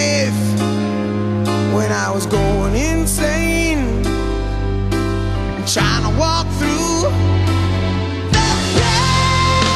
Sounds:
Christian music

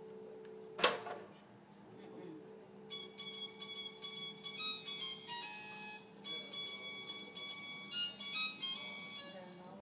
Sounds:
Music, Speech

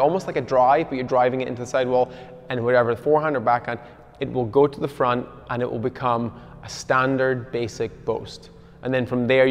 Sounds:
playing squash

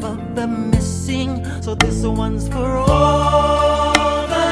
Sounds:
Music

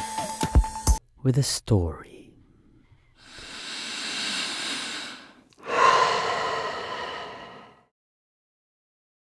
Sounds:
Music

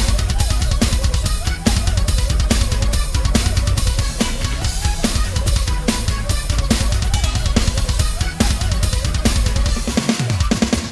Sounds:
Bass drum, Rimshot, Drum kit, Percussion, Drum roll, Drum, Snare drum

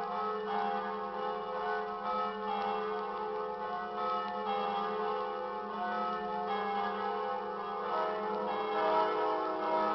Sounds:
Change ringing (campanology)

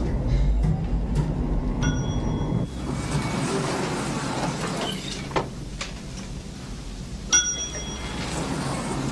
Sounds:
Clang, Ding

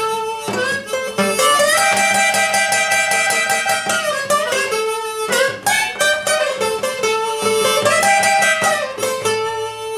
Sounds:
Harmonica, Wind instrument

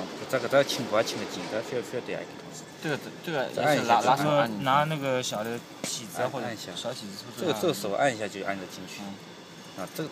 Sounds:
Speech

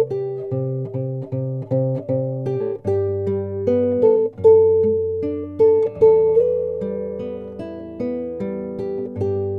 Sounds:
Guitar, Musical instrument, Plucked string instrument, Music

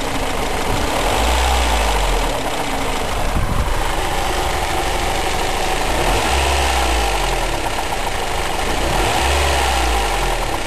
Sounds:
Engine knocking, Engine, car engine knocking

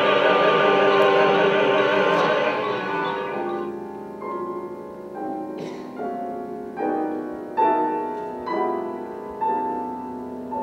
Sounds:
Music, Opera

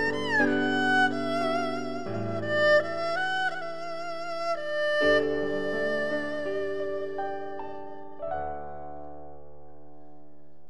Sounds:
playing erhu

